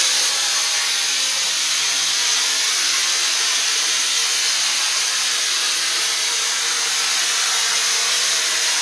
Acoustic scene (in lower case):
restroom